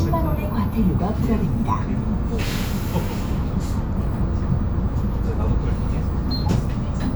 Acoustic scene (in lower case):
bus